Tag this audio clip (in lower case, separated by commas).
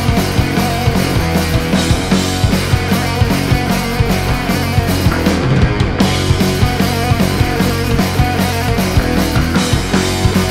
music